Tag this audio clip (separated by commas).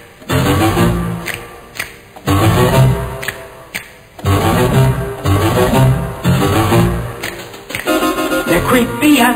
Music, Speech